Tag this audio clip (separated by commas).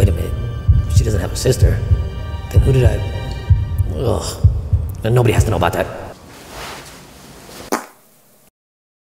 Music, Speech